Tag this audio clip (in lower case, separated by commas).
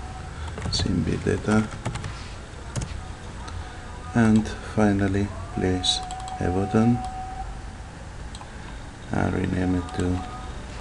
speech